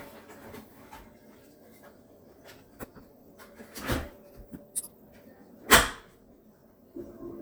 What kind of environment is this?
kitchen